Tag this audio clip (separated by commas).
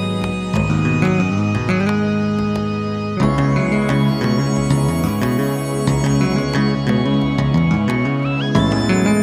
Music, Video game music